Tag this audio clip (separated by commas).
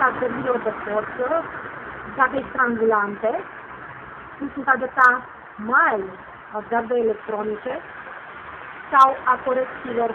Speech